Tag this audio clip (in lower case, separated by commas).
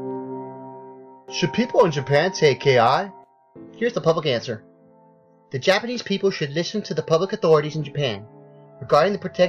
piano